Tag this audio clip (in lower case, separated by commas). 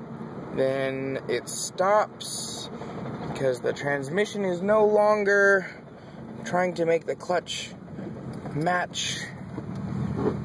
speech